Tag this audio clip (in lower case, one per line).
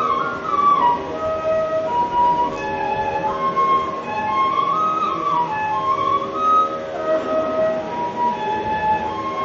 wind instrument
flute
playing flute